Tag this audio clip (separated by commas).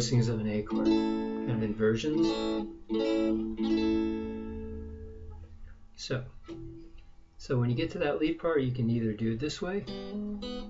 Plucked string instrument, Strum, Guitar, Musical instrument, Speech, Acoustic guitar, Music